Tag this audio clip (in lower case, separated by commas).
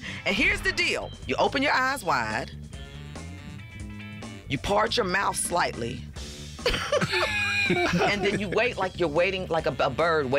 speech, music